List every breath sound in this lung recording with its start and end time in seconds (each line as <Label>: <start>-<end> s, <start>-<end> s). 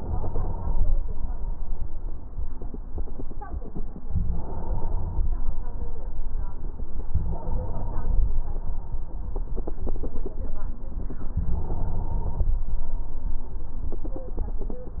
Inhalation: 0.00-0.97 s, 4.11-5.53 s, 7.11-8.38 s, 11.32-12.60 s